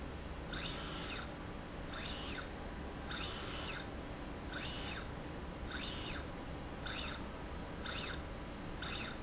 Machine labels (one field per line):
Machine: slide rail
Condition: normal